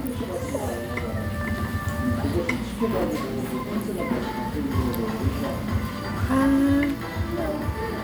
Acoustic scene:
restaurant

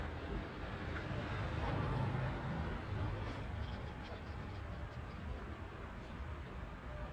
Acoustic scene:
residential area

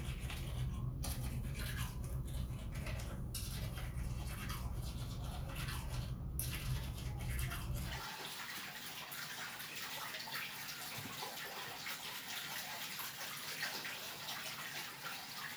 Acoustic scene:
restroom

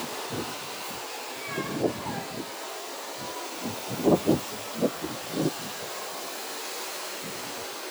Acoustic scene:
residential area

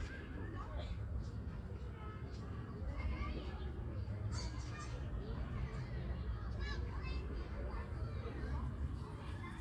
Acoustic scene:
park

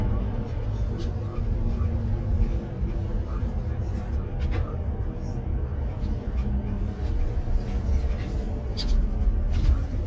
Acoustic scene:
car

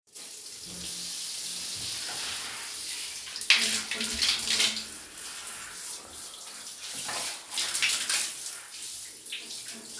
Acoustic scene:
restroom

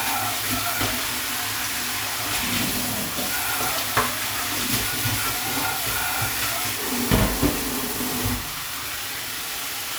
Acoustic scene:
kitchen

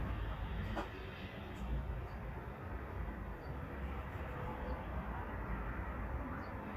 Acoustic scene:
residential area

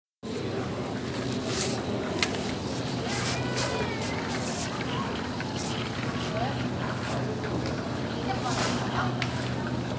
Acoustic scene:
crowded indoor space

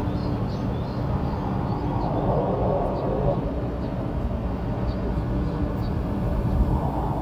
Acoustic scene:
park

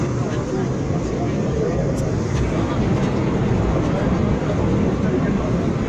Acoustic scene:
subway train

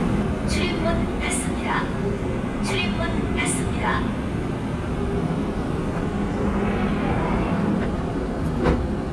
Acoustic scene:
subway train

